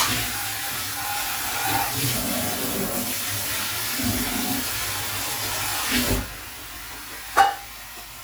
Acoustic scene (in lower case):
kitchen